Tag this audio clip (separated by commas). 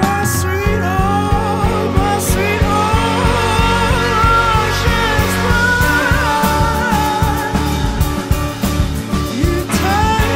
Psychedelic rock, Music